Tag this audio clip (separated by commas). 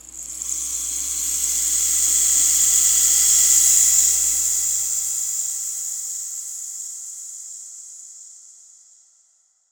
Rattle (instrument), Percussion, Music, Musical instrument